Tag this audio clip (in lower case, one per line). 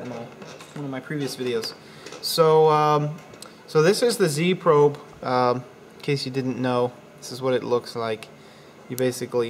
speech